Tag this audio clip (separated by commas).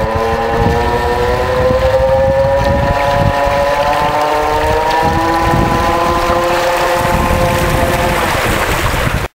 speedboat, Vehicle, Water vehicle